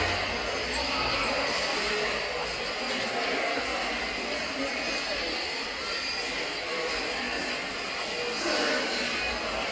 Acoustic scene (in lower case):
subway station